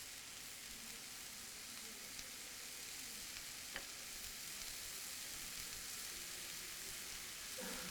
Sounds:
frying (food)
home sounds

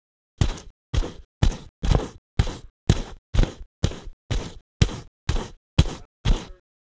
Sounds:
walk

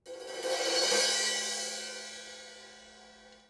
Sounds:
cymbal
percussion
crash cymbal
music
musical instrument

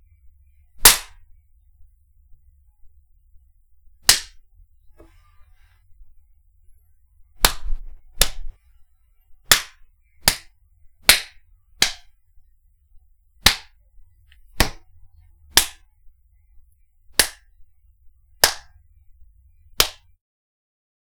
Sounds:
hands

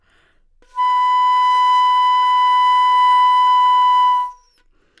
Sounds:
music
musical instrument
woodwind instrument

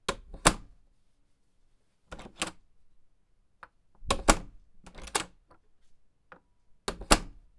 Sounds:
domestic sounds
door
slam

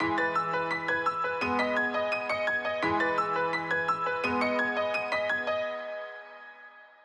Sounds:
piano
keyboard (musical)
music
musical instrument

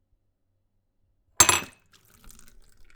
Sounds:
glass
liquid

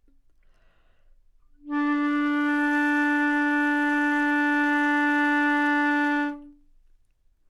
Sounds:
music
wind instrument
musical instrument

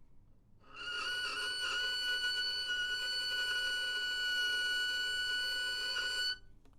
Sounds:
music
musical instrument
bowed string instrument

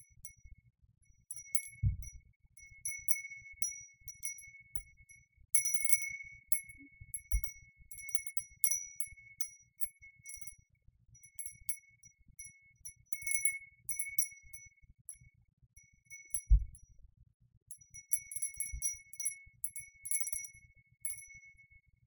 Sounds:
wind chime
chime
bell

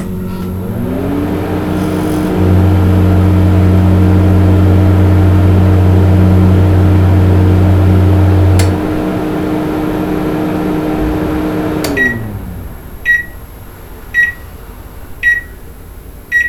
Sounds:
microwave oven
domestic sounds

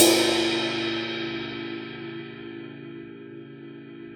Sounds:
cymbal
crash cymbal
percussion
music
musical instrument

